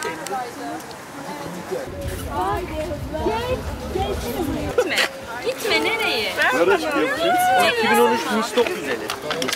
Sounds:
Speech

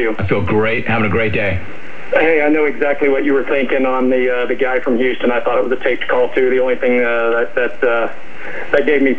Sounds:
Speech

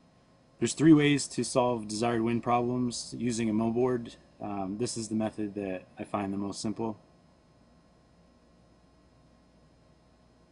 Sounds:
Speech

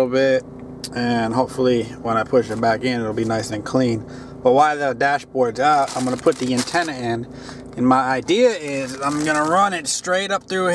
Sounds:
Speech, Vehicle

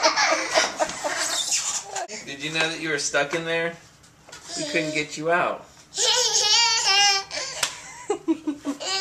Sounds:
people babbling, Speech, Babbling

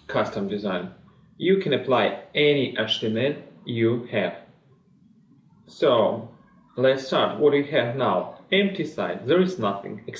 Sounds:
Speech

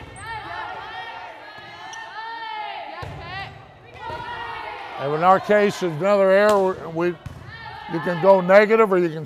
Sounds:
playing volleyball

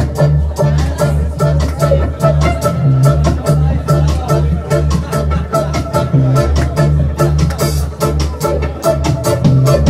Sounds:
Music

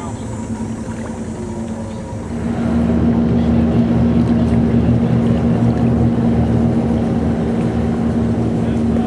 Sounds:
Speech, Aircraft, airplane, Vehicle

